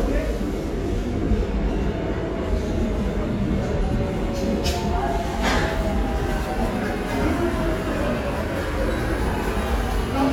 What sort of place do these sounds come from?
subway station